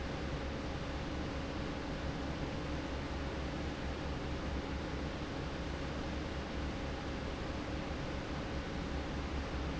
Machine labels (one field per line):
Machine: fan